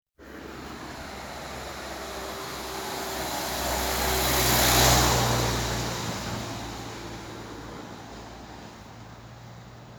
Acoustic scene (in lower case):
street